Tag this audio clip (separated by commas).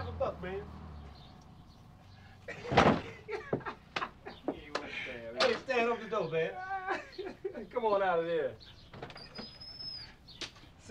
Speech